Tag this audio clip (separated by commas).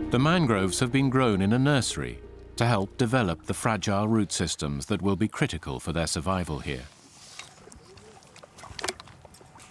Speech